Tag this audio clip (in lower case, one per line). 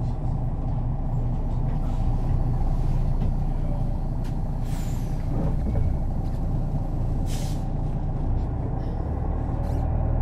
vehicle